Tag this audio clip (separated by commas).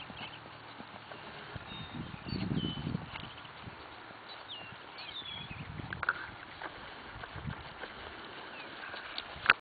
horse clip-clop, Clip-clop, Animal